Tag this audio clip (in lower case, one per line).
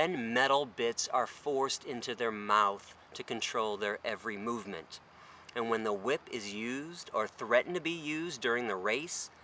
speech